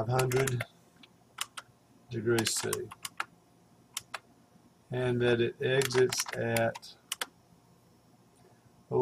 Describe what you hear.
A man speaks while typing